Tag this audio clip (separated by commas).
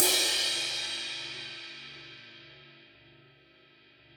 Musical instrument, Percussion, Crash cymbal, Cymbal, Music